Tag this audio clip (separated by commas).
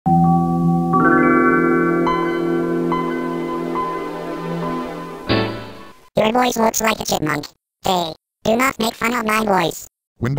Music, Speech